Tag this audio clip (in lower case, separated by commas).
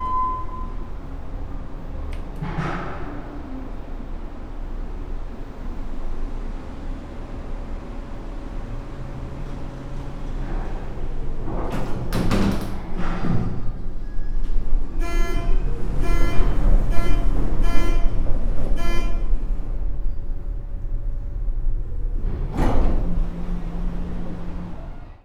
home sounds, sliding door, door